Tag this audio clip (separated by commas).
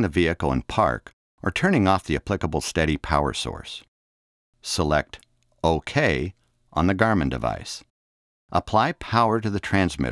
Speech